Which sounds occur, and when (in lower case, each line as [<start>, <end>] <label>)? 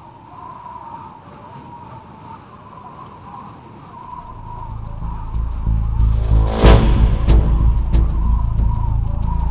[0.00, 9.50] wind
[4.23, 9.50] music